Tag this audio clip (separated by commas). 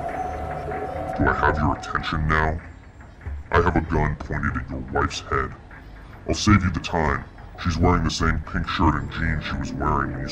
Speech